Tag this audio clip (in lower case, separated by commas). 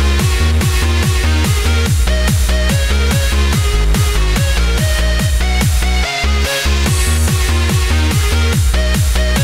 techno, music